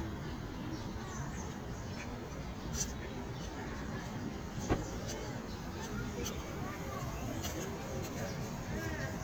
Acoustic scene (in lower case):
park